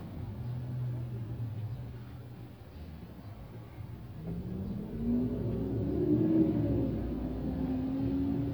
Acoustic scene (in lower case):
car